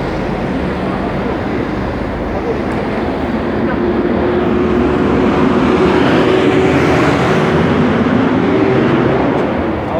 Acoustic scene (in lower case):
street